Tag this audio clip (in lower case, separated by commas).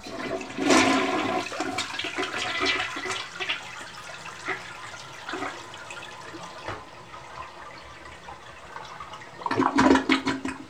toilet flush, home sounds